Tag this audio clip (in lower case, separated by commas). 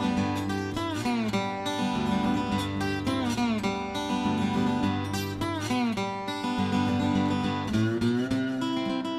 music, flamenco